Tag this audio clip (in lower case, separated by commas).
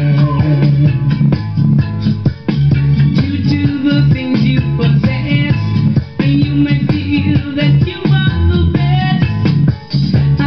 music